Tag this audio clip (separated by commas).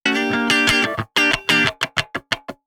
Plucked string instrument, Electric guitar, Music, Guitar, Musical instrument